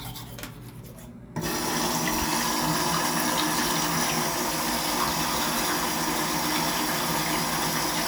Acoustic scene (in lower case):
restroom